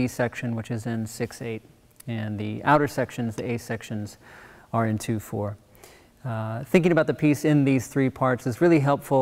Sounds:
Speech

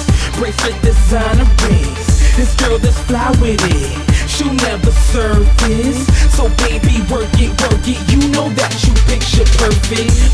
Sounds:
Music

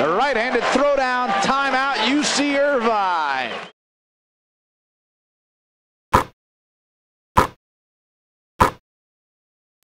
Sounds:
Speech

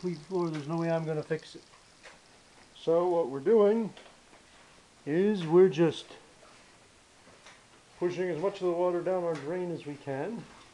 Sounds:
Speech

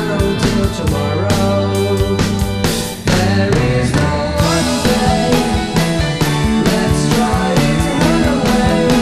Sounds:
Independent music, Guitar, Music, Psychedelic rock, Singing, Rock music

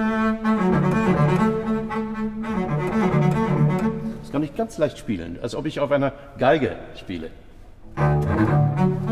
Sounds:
playing double bass

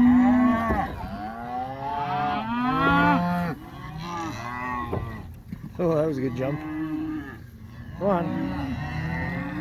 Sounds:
bull bellowing

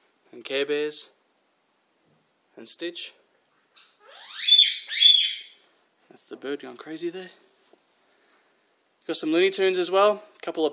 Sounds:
inside a small room, Speech

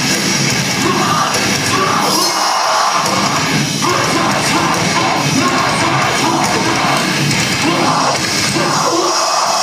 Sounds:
Music

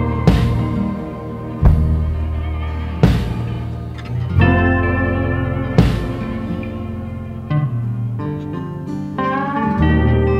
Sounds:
slide guitar, Music

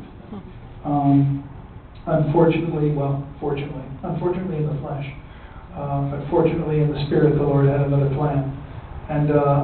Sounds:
Speech, man speaking, monologue

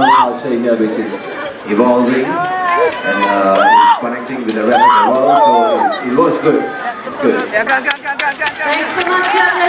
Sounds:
Crowd, Cheering

